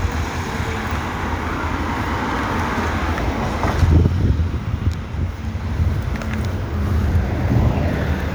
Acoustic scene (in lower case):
street